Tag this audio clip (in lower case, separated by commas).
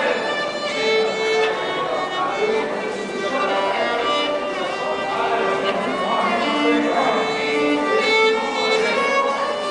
fiddle, musical instrument, speech, music